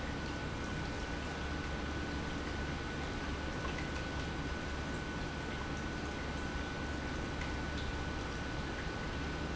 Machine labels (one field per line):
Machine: pump